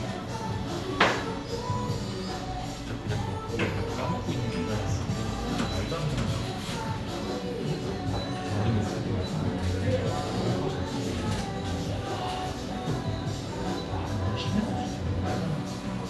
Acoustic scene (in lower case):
crowded indoor space